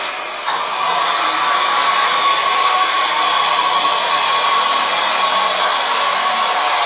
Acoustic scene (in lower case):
subway train